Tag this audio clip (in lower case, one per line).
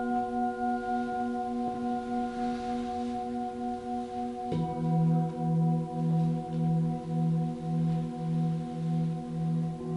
singing bowl